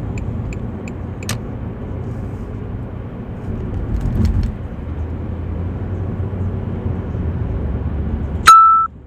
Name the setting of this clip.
car